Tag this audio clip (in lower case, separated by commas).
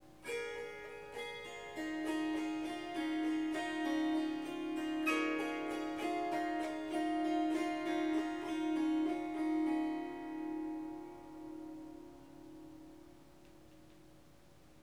music, harp, musical instrument